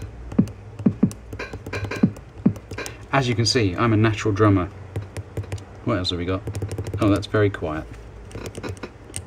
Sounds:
speech, drum machine, drum, music

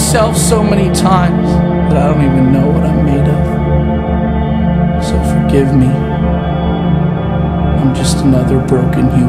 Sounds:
music, speech

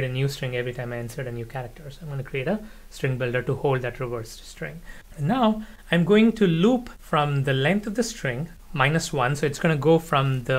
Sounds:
reversing beeps

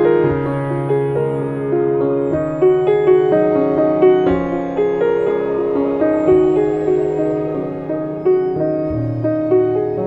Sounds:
music

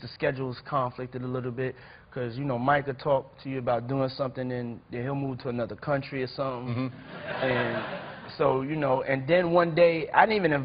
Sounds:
speech

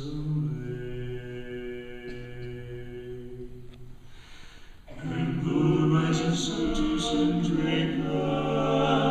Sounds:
male singing, choir

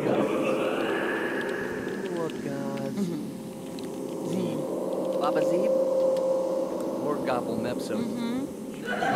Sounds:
speech

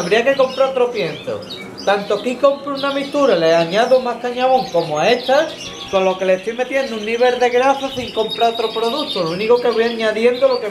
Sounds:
canary calling

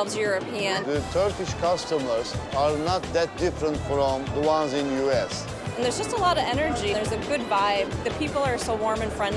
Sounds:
music, speech

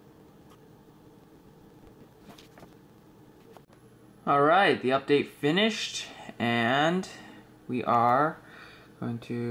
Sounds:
speech

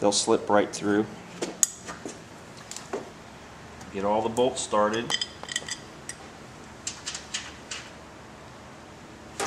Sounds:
inside a large room or hall, speech

